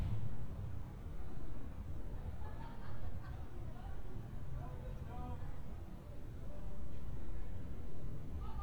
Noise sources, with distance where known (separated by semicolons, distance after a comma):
person or small group talking, far